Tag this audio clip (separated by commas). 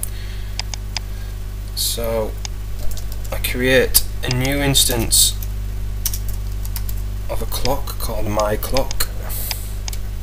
Speech